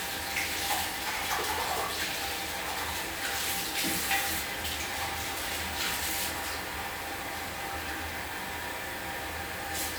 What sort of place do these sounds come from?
restroom